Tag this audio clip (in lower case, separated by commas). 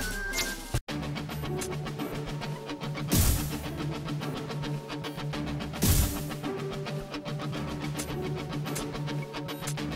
music